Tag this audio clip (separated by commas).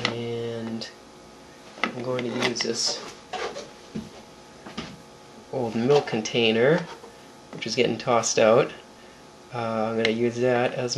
Speech